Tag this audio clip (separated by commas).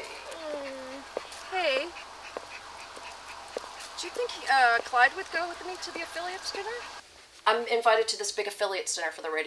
woman speaking